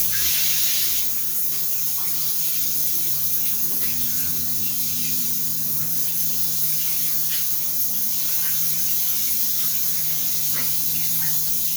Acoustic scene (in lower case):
restroom